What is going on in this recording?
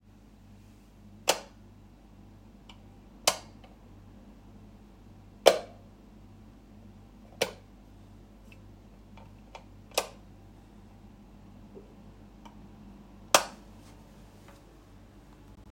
I walked into the bedroom, used the light switch, and then walked a few more steps before stopping.